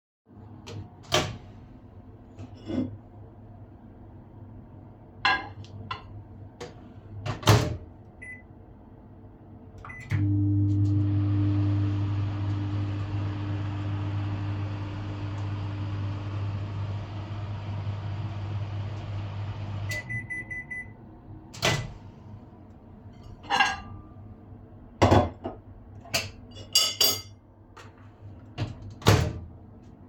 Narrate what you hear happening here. I opened the microwave, took my dish and put it inside. I closed the microwave, set it to run for 10 seconds and started it. Then I opened it, took my dish out, put it on the table and closed the microwave.